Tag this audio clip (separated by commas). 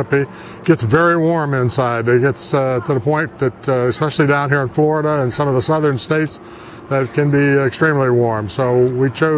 Speech